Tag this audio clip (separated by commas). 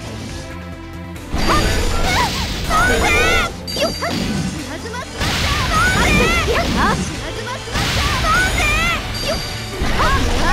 pop, Music, Speech